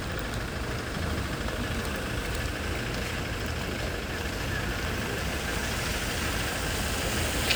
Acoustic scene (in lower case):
residential area